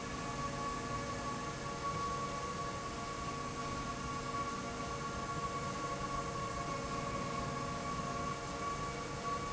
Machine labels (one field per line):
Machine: slide rail